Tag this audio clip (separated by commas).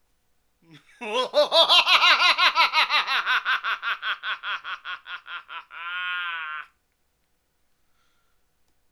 Laughter, Human voice